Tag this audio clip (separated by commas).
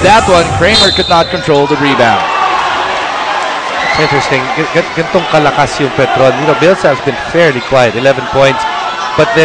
Speech